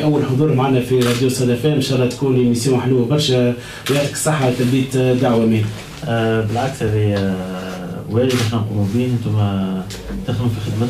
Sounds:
speech

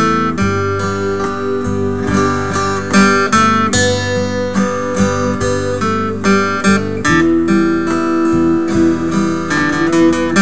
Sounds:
music

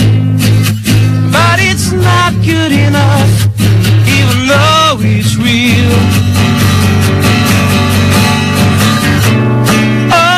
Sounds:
music

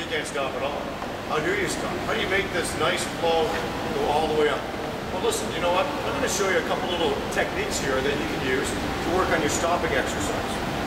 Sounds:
inside a large room or hall
speech

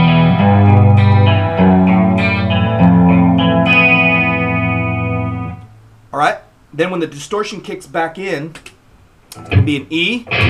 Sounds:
musical instrument
inside a small room
music
plucked string instrument
speech
guitar
effects unit

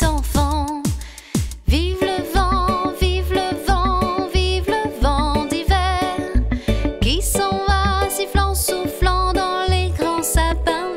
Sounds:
music
music for children

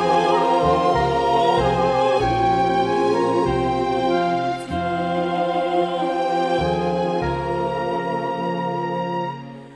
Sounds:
music
christian music

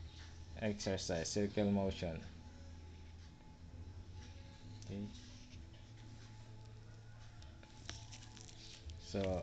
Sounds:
speech
inside a small room

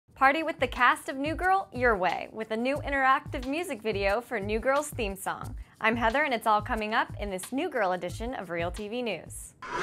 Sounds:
speech
music

